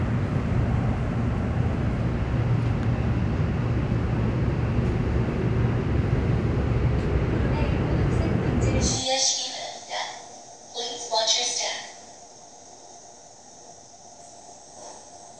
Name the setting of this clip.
subway train